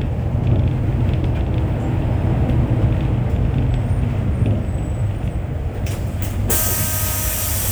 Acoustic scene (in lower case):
bus